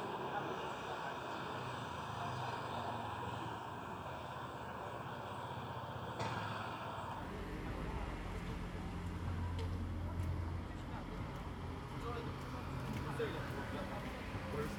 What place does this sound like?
residential area